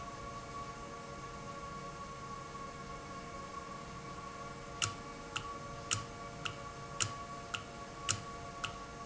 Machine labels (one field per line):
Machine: valve